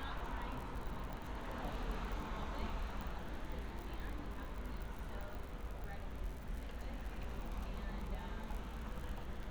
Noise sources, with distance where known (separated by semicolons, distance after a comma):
person or small group talking, near